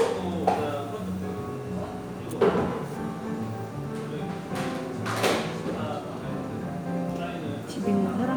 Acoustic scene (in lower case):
cafe